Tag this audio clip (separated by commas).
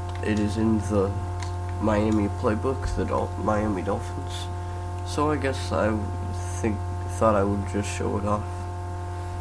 Speech